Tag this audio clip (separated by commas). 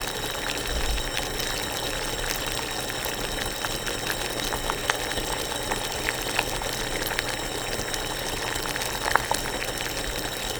Boiling, Liquid